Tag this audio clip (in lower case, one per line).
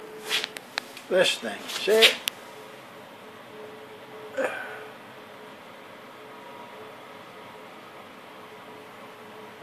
speech